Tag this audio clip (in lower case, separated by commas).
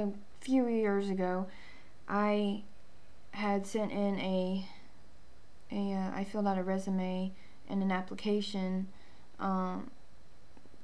speech